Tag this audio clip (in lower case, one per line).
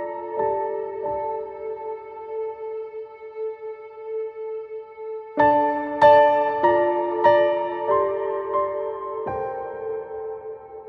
new-age music